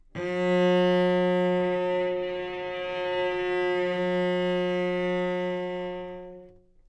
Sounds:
music
bowed string instrument
musical instrument

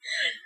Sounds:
screech

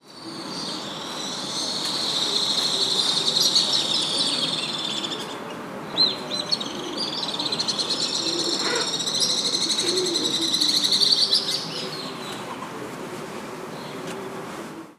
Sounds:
wild animals
bird
bird vocalization
animal

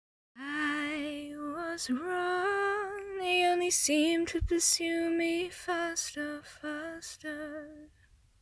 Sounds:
singing
female singing
human voice

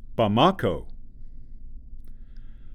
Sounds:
male speech
human voice
speech

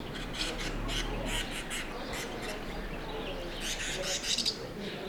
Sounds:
bird
animal
wild animals

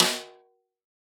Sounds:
music
snare drum
musical instrument
percussion
drum

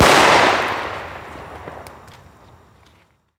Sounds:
explosion

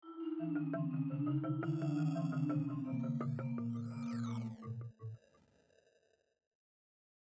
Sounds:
percussion
mallet percussion
xylophone
music
musical instrument

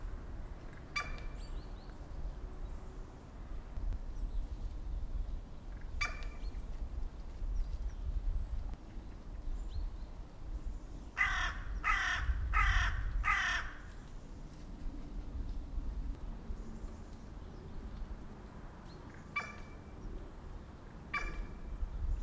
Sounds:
crow
bird
wild animals
animal

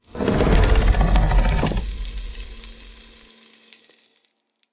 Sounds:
fire

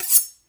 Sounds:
domestic sounds
cutlery

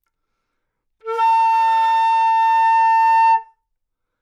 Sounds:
music
musical instrument
wind instrument

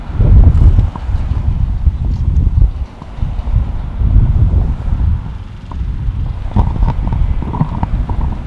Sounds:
rattle

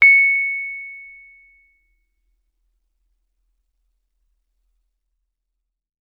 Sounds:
music
piano
keyboard (musical)
musical instrument

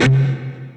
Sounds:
guitar
plucked string instrument
musical instrument
electric guitar
music

